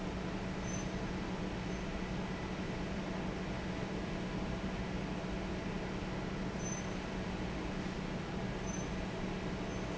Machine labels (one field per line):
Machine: fan